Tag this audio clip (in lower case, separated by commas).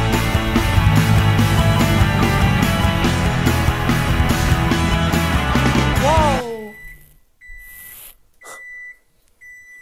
music, speech